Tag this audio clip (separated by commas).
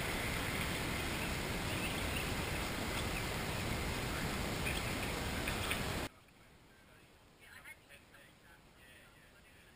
Speech, Waterfall